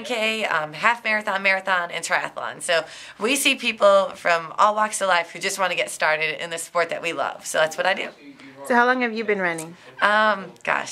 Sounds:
Speech

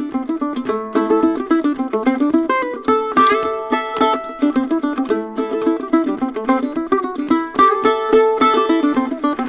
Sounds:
playing mandolin

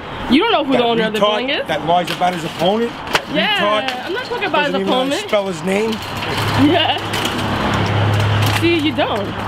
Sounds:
Speech

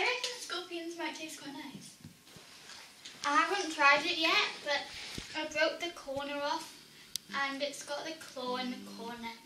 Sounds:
Child speech

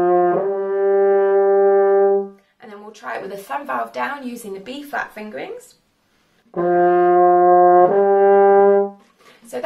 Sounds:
playing french horn

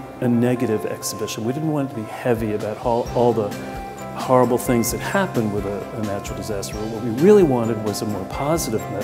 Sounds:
Music, Speech

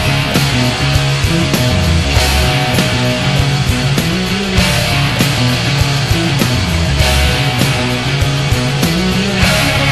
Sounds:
Music

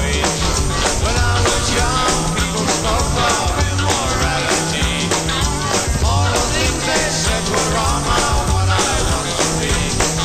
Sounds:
Rock and roll, Music

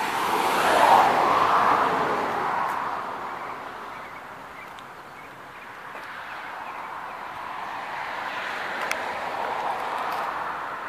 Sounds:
Vehicle

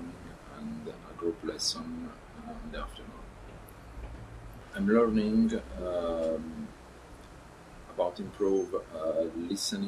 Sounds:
Speech

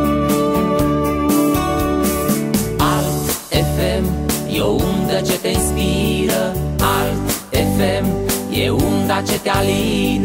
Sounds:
Music

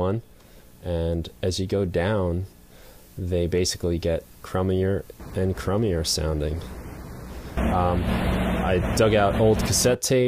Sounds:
Speech

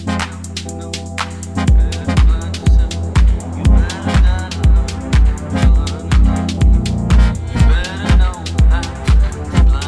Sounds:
Music

